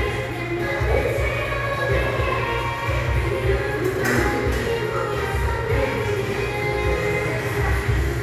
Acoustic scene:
crowded indoor space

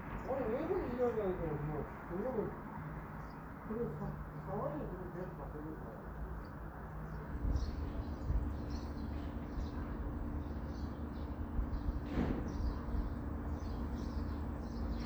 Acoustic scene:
residential area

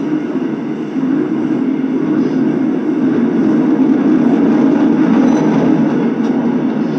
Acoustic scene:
subway train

